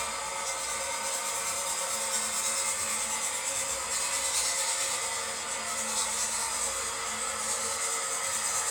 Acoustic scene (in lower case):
restroom